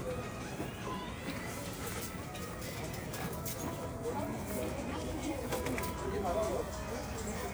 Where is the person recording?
in a crowded indoor space